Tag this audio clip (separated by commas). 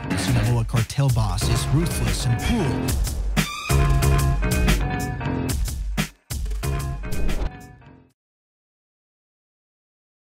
Music, Speech